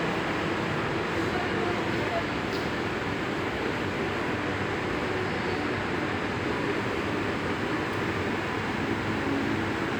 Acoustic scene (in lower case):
subway station